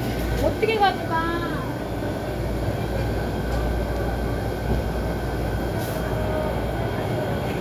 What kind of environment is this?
crowded indoor space